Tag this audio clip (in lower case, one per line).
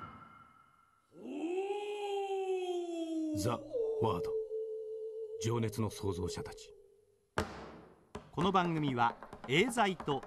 speech